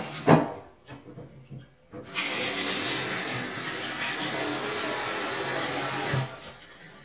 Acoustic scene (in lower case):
kitchen